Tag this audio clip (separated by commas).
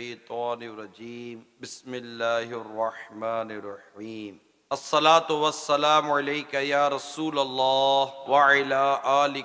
Male speech, Speech